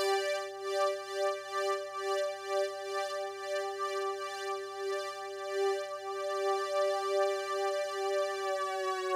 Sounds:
Music

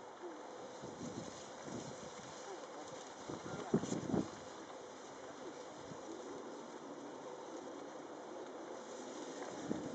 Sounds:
outside, rural or natural

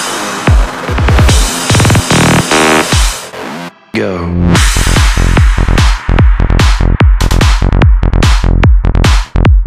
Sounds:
Music

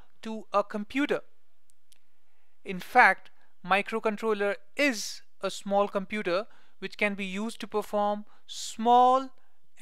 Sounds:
Speech

